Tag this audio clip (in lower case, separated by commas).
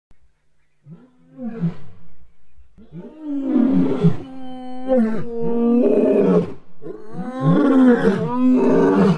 lions growling, roar, animal, wild animals, roaring cats